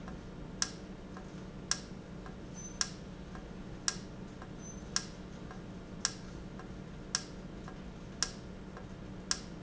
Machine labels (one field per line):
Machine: valve